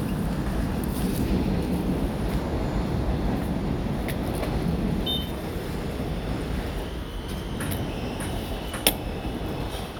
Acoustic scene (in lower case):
subway station